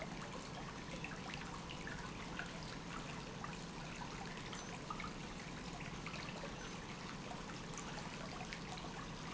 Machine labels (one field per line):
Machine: pump